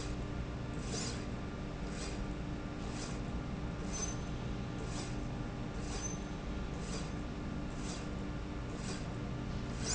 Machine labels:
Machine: slide rail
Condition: normal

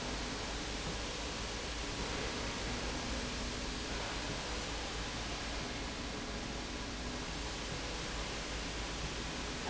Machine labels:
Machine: slide rail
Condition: normal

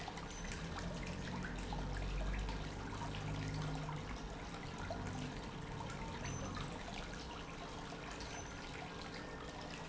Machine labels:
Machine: pump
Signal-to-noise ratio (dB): 0 dB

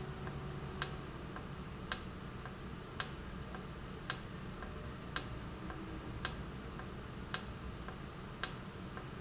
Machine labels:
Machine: valve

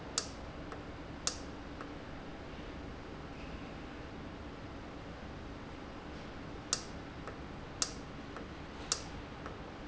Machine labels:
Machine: valve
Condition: normal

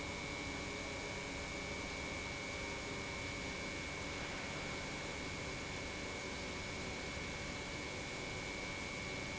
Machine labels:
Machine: pump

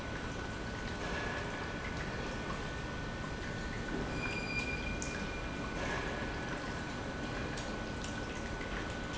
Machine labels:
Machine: pump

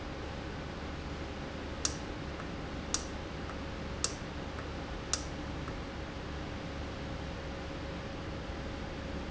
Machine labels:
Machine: valve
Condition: normal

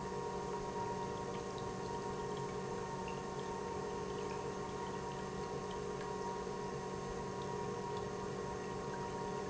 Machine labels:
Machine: pump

